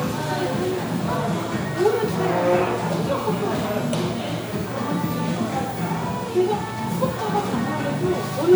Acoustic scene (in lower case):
crowded indoor space